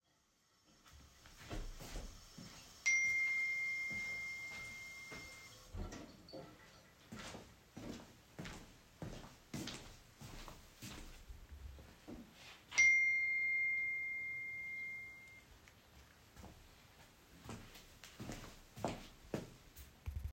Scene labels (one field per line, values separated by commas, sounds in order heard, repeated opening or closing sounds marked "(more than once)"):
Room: kitchen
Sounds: running water, phone ringing, footsteps